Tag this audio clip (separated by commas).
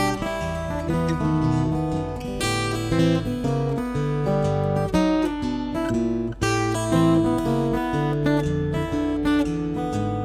Music, Acoustic guitar, Guitar, Plucked string instrument, Musical instrument